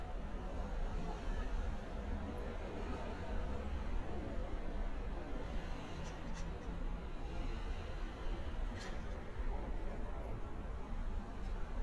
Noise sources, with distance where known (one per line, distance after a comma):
non-machinery impact